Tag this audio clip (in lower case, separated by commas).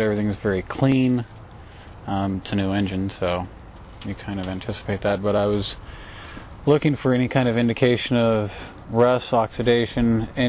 speech